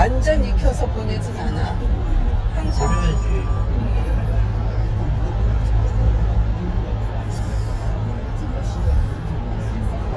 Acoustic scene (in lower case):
car